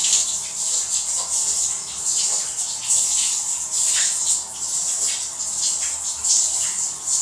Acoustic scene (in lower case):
restroom